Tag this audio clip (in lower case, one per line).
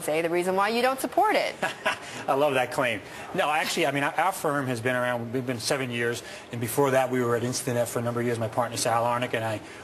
speech